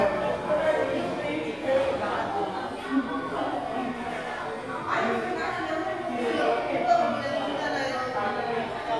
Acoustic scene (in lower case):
crowded indoor space